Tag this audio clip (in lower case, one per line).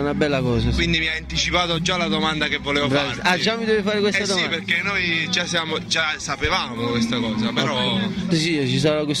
music
speech